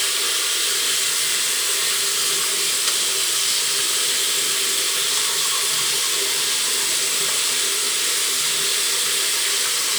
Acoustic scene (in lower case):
restroom